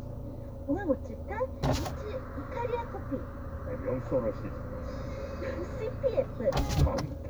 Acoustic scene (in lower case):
car